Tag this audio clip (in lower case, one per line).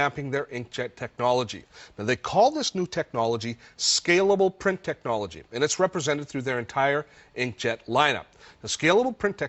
speech